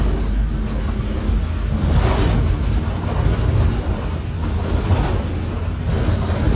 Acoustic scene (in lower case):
bus